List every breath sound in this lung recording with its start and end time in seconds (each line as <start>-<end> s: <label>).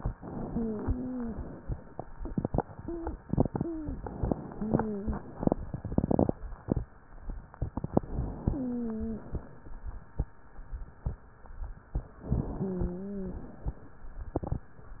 0.10-1.36 s: inhalation
0.24-1.38 s: wheeze
1.36-1.92 s: exhalation
2.80-3.24 s: wheeze
3.48-4.00 s: wheeze
3.86-4.98 s: inhalation
4.56-5.20 s: wheeze
4.98-5.92 s: exhalation
7.64-8.58 s: inhalation
8.44-9.28 s: wheeze
8.58-9.40 s: exhalation
12.14-12.96 s: inhalation
12.58-13.42 s: wheeze
13.26-14.00 s: exhalation